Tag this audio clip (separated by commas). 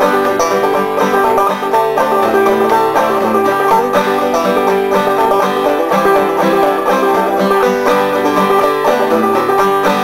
Music